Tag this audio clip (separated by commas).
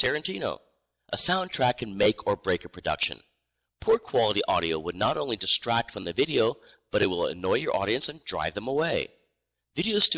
Speech